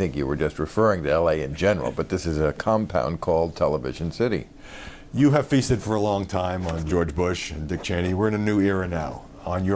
Two adult males are speaking